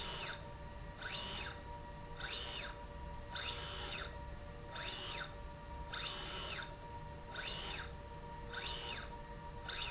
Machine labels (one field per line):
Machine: slide rail